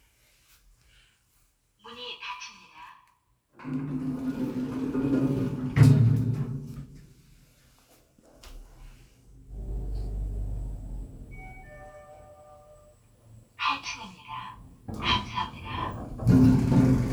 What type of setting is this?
elevator